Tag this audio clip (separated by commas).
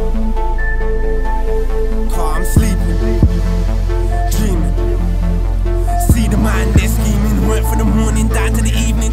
Music